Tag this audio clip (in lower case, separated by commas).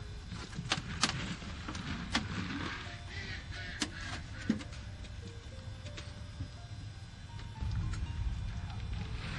animal, goat